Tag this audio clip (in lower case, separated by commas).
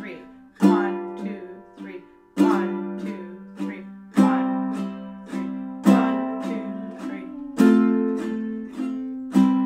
playing ukulele